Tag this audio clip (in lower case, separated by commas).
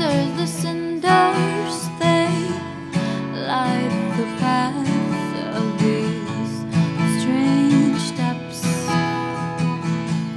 music, female singing